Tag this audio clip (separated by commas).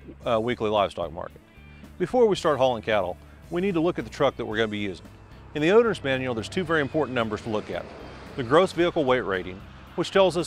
Music, Speech